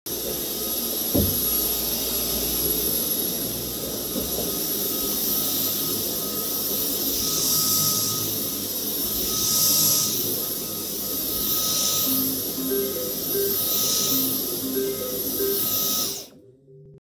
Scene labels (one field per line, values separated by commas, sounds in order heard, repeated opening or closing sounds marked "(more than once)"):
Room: living room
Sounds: vacuum cleaner, phone ringing